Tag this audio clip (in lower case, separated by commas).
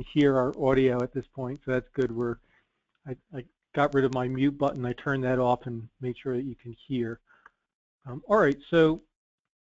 speech